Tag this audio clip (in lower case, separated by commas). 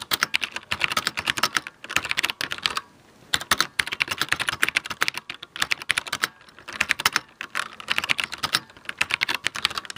computer keyboard, typing, typing on computer keyboard